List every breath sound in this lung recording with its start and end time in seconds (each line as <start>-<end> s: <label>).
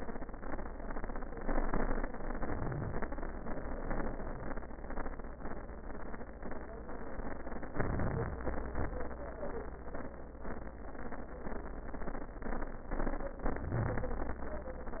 2.34-3.05 s: inhalation
7.71-8.41 s: inhalation
8.41-8.95 s: exhalation
13.48-14.18 s: inhalation